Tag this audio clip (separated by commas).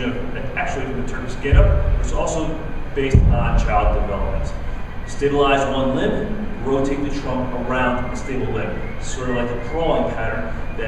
Speech